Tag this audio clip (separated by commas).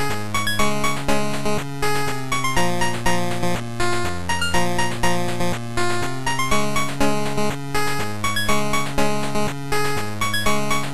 Music, Soundtrack music